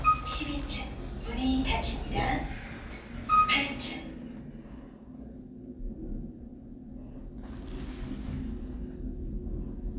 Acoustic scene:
elevator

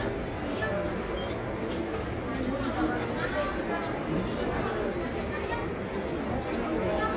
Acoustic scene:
cafe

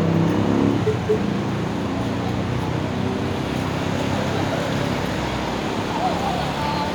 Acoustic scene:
street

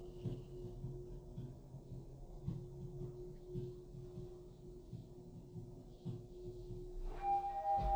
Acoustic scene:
elevator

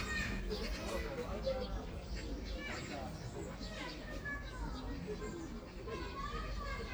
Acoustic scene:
park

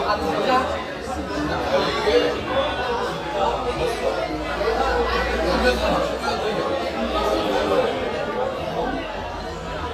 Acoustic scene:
crowded indoor space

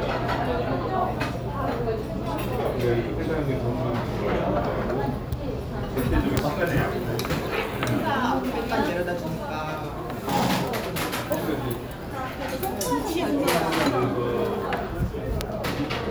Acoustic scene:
restaurant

